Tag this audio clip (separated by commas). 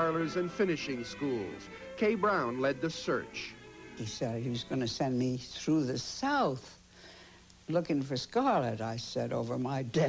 Speech, Music